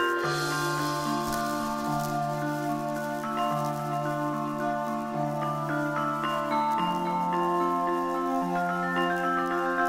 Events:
0.0s-9.8s: background noise
0.0s-9.8s: music

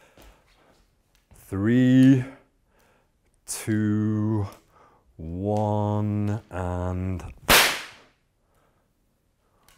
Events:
0.0s-9.7s: mechanisms
6.5s-7.3s: man speaking
8.5s-8.9s: breathing
9.4s-9.7s: whip
9.7s-9.7s: tick

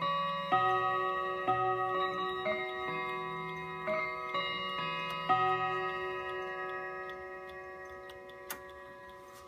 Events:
0.0s-9.4s: music
0.5s-0.6s: tick
0.7s-0.8s: tick
1.9s-2.0s: tick
2.4s-2.5s: tick
3.5s-3.6s: tick
3.9s-4.0s: tick
5.1s-5.2s: tick
6.3s-6.3s: tick
6.7s-6.8s: tick
7.0s-7.2s: tick
7.5s-7.5s: tick
7.8s-8.4s: tick
8.5s-8.6s: generic impact sounds
8.7s-8.8s: tick
9.1s-9.2s: tick
9.3s-9.4s: generic impact sounds

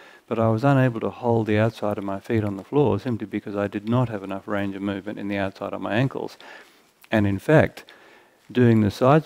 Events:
0.0s-0.2s: breathing
0.0s-9.2s: mechanisms
0.3s-6.4s: male speech
1.9s-2.0s: tick
2.3s-2.4s: tick
3.8s-3.9s: tick
6.4s-7.0s: breathing
7.0s-7.8s: male speech
7.8s-8.0s: tick
7.8s-8.5s: breathing
8.3s-8.5s: generic impact sounds
8.5s-9.2s: male speech

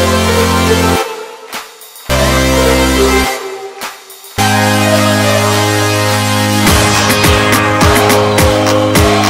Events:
0.0s-9.2s: music

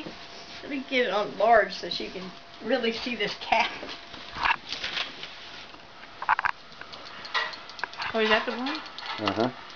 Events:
0.0s-9.7s: mechanisms
0.5s-2.2s: woman speaking
2.5s-3.9s: woman speaking
4.1s-4.5s: generic impact sounds
4.7s-5.0s: generic impact sounds
5.2s-5.2s: generic impact sounds
6.2s-6.5s: generic impact sounds
6.7s-8.1s: generic impact sounds
7.8s-8.8s: woman speaking
8.4s-9.5s: generic impact sounds
8.9s-9.5s: human voice
9.7s-9.7s: generic impact sounds

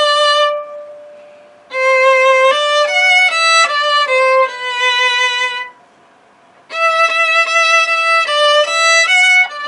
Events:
0.0s-9.6s: background noise
0.0s-1.2s: music
1.5s-5.7s: music
6.6s-9.6s: music

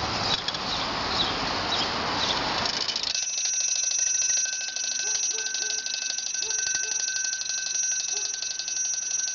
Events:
0.0s-3.2s: wind noise (microphone)
0.0s-9.3s: mechanisms
0.2s-0.4s: chirp
0.3s-0.6s: gears
0.7s-0.9s: chirp
1.1s-1.3s: chirp
1.7s-1.9s: chirp
2.2s-2.4s: chirp
2.5s-9.3s: gears
3.2s-9.3s: bell
5.1s-5.2s: bark
5.3s-5.8s: bark
6.4s-6.5s: bark
6.8s-7.0s: bark
8.1s-8.4s: bark

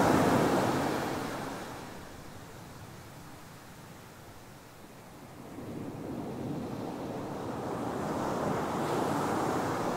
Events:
0.0s-9.9s: surf

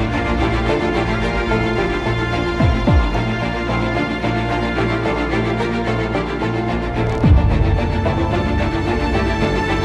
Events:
0.0s-9.8s: music

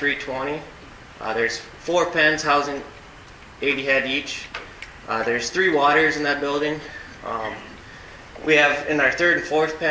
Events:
0.0s-0.7s: male speech
0.0s-9.9s: mechanisms
1.2s-1.6s: male speech
1.8s-2.9s: male speech
2.9s-3.0s: tick
3.2s-3.3s: tick
3.6s-4.5s: male speech
4.5s-4.9s: generic impact sounds
5.0s-6.9s: male speech
5.2s-5.3s: tick
7.2s-7.7s: male speech
7.8s-8.3s: breathing
8.3s-9.9s: male speech

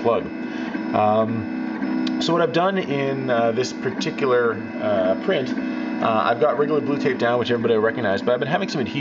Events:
0.0s-0.3s: male speech
0.0s-9.0s: mechanisms
0.4s-0.7s: breathing
0.9s-1.3s: male speech
2.0s-2.1s: tick
2.2s-4.6s: male speech
4.8s-5.6s: male speech
6.0s-9.0s: male speech

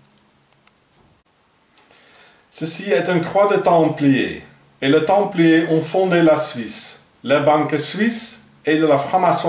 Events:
0.0s-9.4s: mechanisms
0.2s-0.2s: tick
0.5s-0.6s: tick
0.7s-0.7s: tick
0.9s-1.0s: tick
1.8s-1.8s: tick
1.8s-2.5s: breathing
2.5s-4.6s: man speaking
4.8s-7.1s: man speaking
7.3s-8.5s: man speaking
8.7s-9.4s: man speaking

